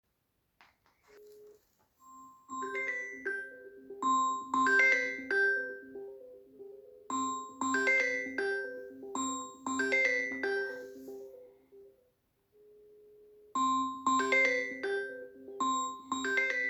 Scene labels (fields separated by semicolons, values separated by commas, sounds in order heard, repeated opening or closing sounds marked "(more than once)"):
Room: living room; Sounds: phone ringing